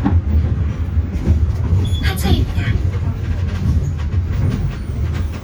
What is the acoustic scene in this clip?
bus